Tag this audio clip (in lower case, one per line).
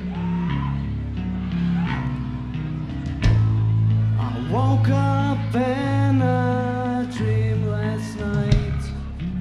speech
music